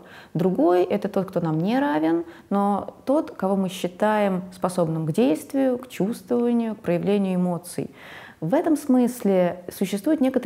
A woman giving a speech